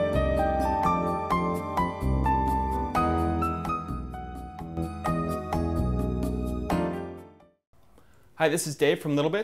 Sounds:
Speech, Music

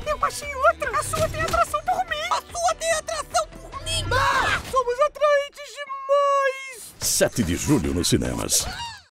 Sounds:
Music, Speech

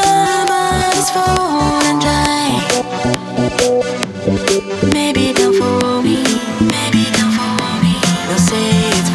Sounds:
Music

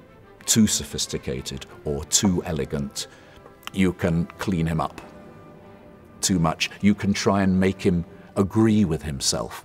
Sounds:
Speech

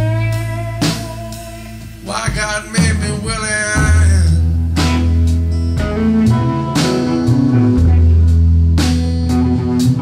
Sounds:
Singing, Psychedelic rock, Music

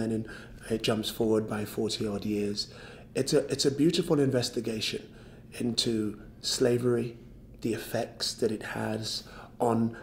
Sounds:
Speech

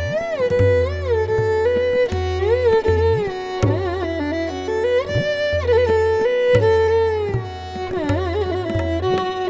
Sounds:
Musical instrument, Bowed string instrument, Tabla, fiddle, Music

